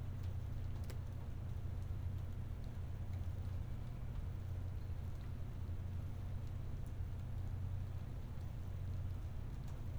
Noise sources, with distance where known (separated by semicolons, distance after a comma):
background noise